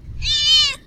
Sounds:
Animal, pets, Cat

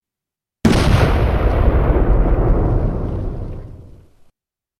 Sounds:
Boom, Explosion

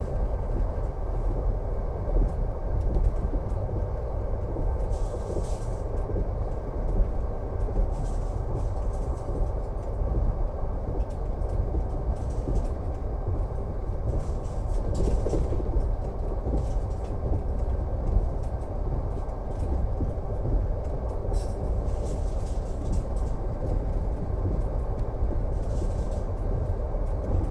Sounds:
Vehicle, Rail transport, Train

